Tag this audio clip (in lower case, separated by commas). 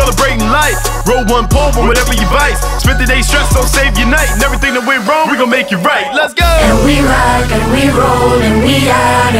music